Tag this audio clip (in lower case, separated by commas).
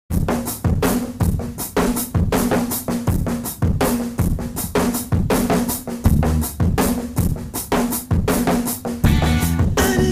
drum roll, snare drum